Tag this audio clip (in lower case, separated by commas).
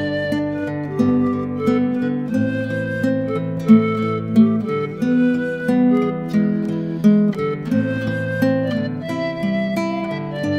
music